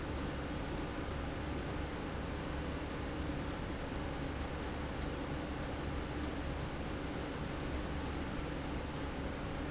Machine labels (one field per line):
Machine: slide rail